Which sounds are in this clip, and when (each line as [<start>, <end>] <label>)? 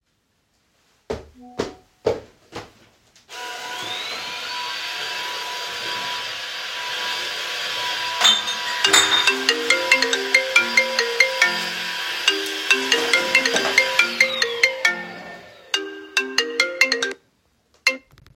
[0.94, 2.85] footsteps
[1.50, 1.82] phone ringing
[3.26, 15.51] vacuum cleaner
[8.58, 17.23] phone ringing
[17.80, 18.03] phone ringing